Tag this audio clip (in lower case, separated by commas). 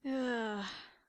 human voice, sigh